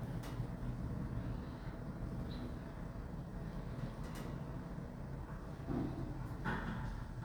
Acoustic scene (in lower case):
elevator